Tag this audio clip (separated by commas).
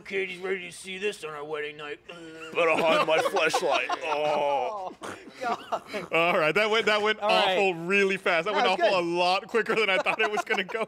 Speech